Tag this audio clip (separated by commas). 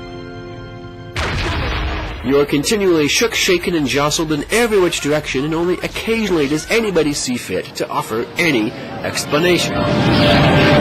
Speech